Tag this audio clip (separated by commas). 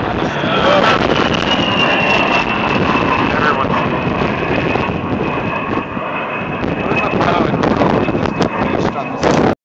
Speech